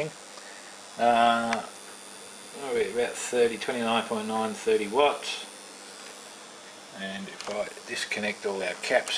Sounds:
inside a small room, speech

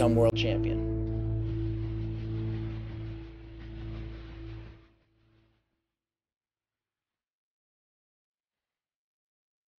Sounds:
speech, music

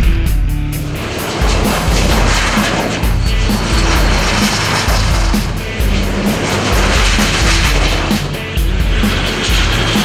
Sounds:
airplane, aircraft, vehicle, music

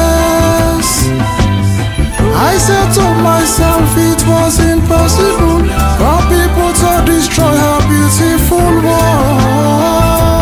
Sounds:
music, soul music

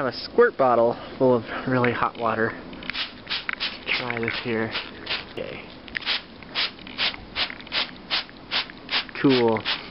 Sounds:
speech

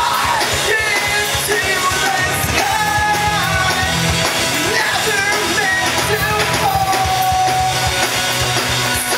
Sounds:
sound effect, music

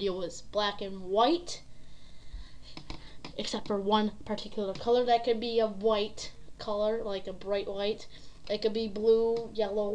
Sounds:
speech

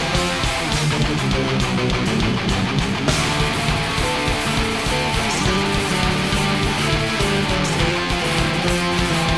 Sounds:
music

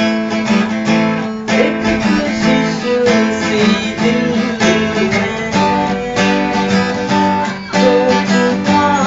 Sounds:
acoustic guitar, music, musical instrument, guitar, strum

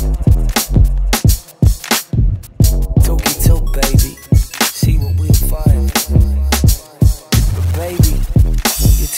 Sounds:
music, rapping

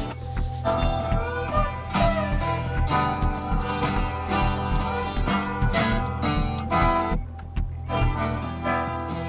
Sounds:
bluegrass

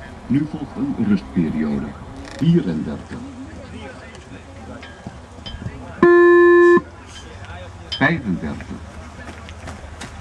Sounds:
speech, run

